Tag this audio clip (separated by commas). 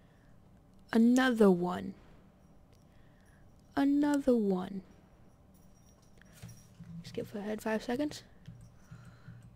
Speech